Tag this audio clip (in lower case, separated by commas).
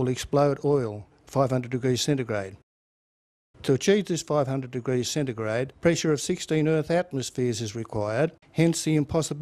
speech